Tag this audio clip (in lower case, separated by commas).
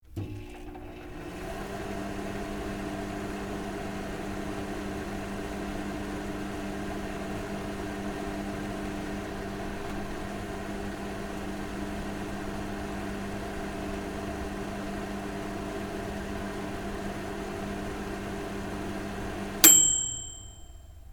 home sounds, microwave oven